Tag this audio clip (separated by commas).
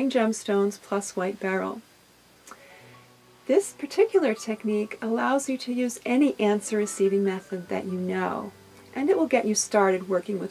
Music, Speech